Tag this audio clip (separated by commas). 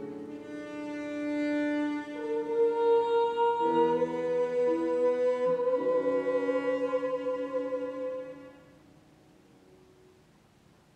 Bowed string instrument, Musical instrument, Music, Singing, Piano, Cello